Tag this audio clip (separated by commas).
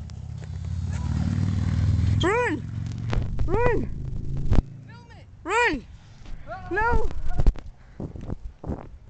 Speech, Car, Vehicle